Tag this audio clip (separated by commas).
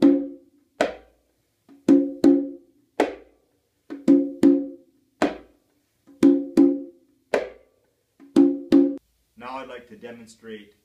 playing congas